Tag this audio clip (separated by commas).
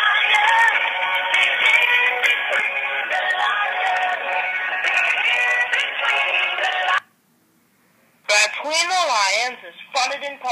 Speech, Music